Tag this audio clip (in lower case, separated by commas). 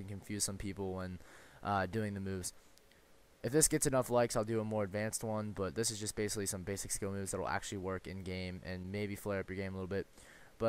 speech